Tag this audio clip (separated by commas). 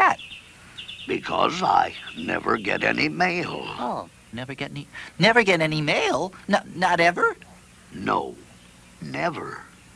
Speech